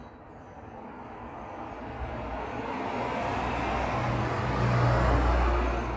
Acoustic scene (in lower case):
street